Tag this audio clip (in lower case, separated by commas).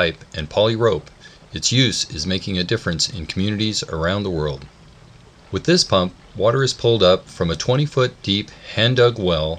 speech